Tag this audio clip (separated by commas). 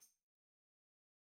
Musical instrument, Music, Percussion, Tambourine